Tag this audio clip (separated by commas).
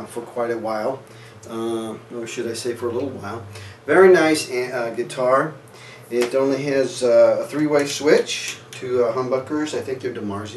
Speech